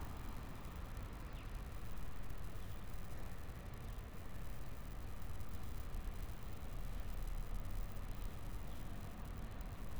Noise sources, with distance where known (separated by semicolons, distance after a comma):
background noise